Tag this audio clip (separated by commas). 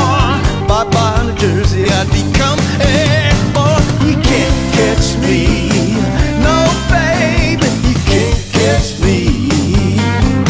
Music, Rock and roll, Rock music, Independent music